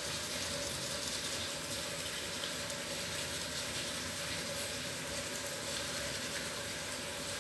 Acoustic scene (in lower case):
restroom